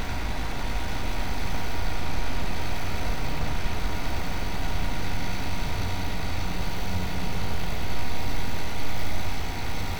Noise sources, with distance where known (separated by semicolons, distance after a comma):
large-sounding engine, near